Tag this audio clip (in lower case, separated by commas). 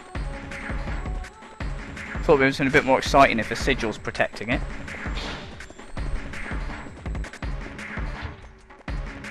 speech, music